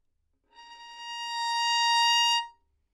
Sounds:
musical instrument, bowed string instrument, music

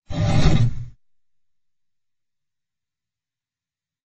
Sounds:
engine

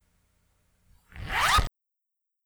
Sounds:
zipper (clothing), domestic sounds

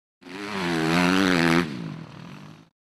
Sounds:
vehicle, motorcycle, motor vehicle (road)

